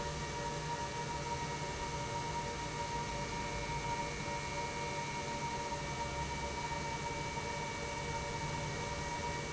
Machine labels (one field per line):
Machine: pump